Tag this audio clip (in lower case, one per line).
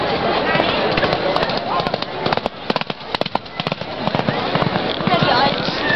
livestock
animal